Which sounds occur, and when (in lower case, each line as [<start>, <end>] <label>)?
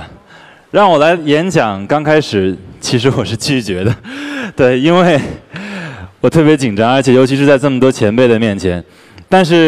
[0.00, 0.17] breathing
[0.00, 9.65] mechanisms
[0.28, 0.71] breathing
[0.72, 2.57] male speech
[2.83, 3.97] male speech
[4.03, 4.50] breathing
[4.58, 5.47] male speech
[5.49, 6.23] breathing
[6.26, 8.84] male speech
[8.81, 9.30] breathing
[9.29, 9.65] male speech